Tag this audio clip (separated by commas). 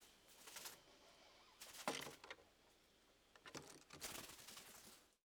Wild animals, Bird, Animal